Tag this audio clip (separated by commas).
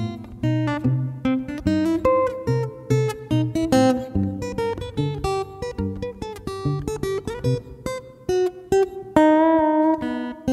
Music